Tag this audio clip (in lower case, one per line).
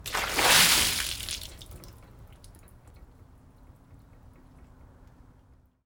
water
liquid
splash